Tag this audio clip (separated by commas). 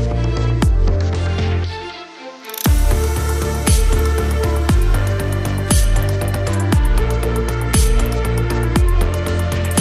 Music